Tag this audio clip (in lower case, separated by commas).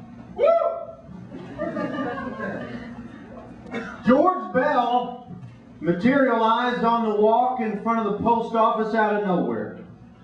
speech